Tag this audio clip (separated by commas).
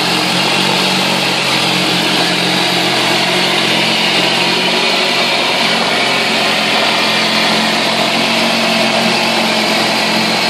Engine